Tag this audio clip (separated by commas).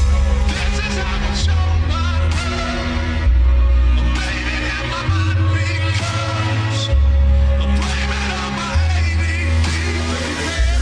Dubstep, Music